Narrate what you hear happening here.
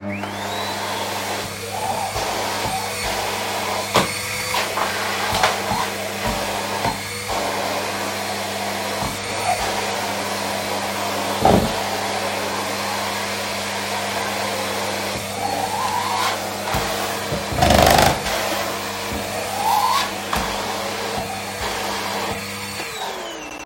I placed the phone on a table and turned on the vacuum cleaner while cleaning the room. A chair moved slightly during the recording.